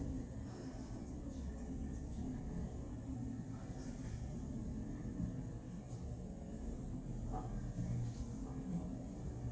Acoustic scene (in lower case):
elevator